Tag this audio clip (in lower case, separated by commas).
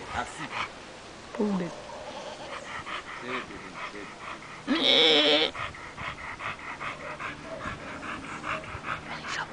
bleat, speech, sheep